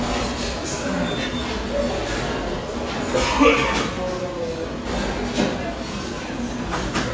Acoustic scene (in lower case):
restaurant